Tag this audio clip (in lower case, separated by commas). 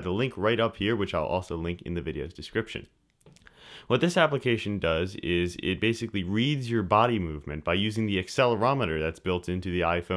speech